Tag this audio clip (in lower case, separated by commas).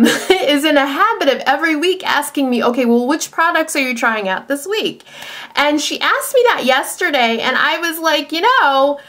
speech